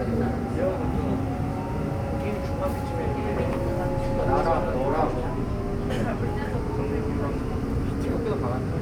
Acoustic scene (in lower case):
subway train